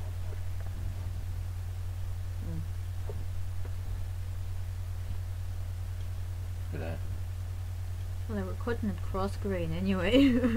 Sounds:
speech

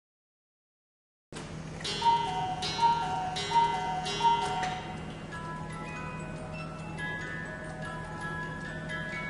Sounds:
tick-tock, music

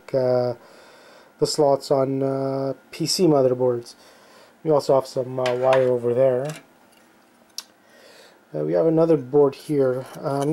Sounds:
speech, inside a small room

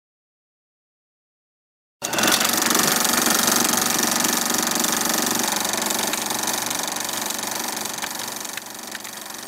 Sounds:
sewing machine

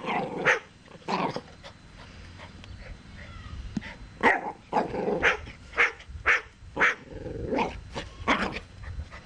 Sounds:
dog, animal, domestic animals, bark

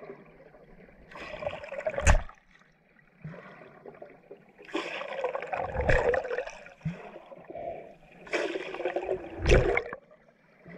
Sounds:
underwater bubbling

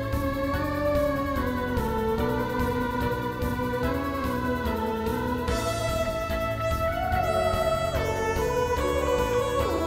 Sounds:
playing theremin

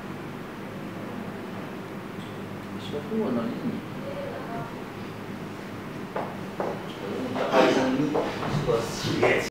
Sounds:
speech

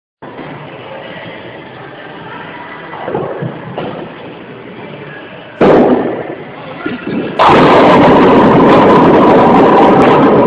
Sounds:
striking bowling

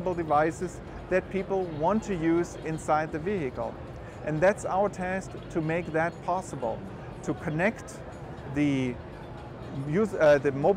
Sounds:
speech

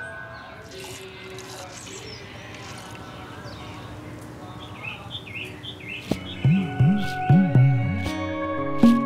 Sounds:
bird call, chirp, bird

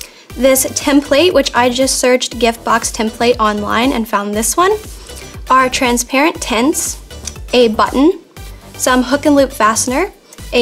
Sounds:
music, speech

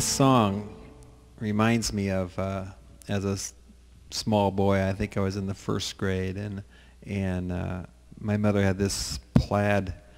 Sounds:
speech

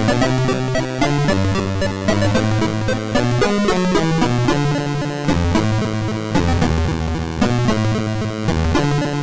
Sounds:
music, video game music

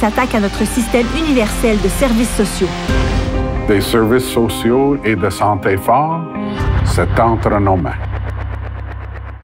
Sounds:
music, speech

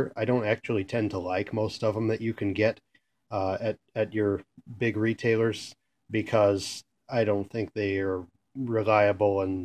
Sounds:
speech

